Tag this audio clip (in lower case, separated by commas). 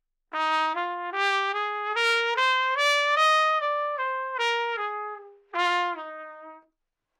trumpet, musical instrument, music, brass instrument